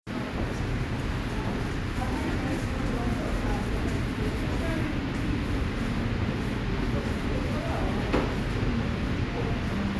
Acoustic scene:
subway station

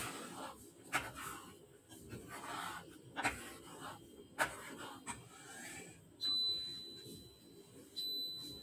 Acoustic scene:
kitchen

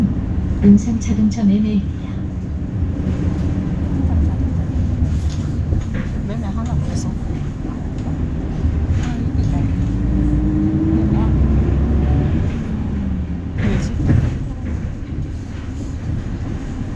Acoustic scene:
bus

